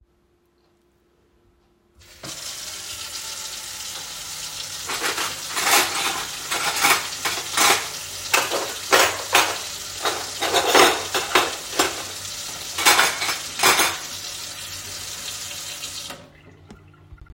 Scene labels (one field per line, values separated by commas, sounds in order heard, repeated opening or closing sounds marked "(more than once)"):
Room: kitchen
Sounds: running water, cutlery and dishes